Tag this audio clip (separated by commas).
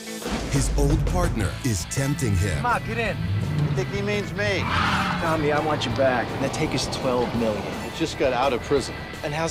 Speech, outside, urban or man-made, Music